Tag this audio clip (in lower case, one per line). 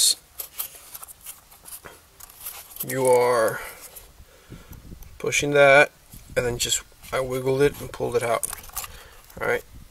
speech